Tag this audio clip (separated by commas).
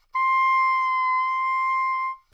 Music, Musical instrument, woodwind instrument